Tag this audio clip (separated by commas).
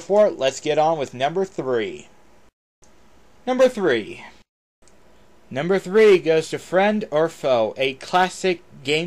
Speech